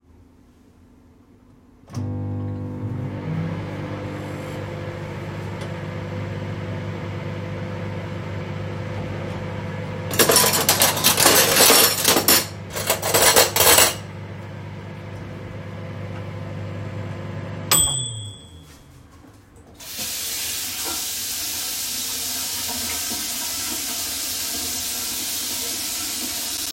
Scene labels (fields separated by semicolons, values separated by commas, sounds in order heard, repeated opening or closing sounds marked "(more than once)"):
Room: kitchen; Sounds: microwave, cutlery and dishes, running water